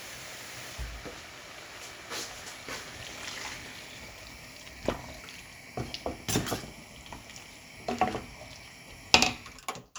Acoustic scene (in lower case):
kitchen